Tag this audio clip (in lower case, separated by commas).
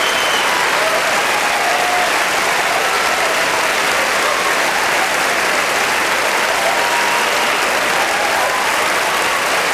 people clapping